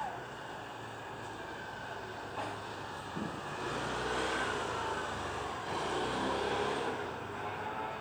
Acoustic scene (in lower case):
residential area